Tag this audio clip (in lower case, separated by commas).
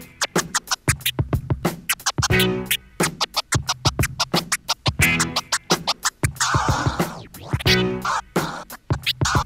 music